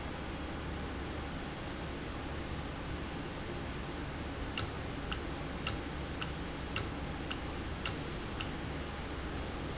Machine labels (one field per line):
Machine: valve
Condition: normal